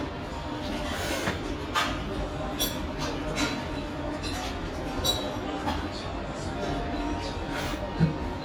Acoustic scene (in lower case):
restaurant